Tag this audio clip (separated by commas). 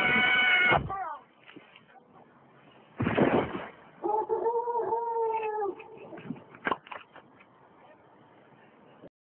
Speech